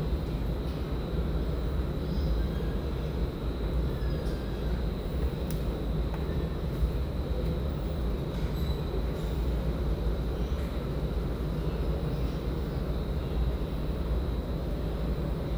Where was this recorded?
in a subway station